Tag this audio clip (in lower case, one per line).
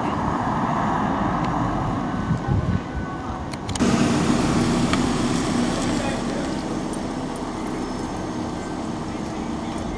vehicle
speech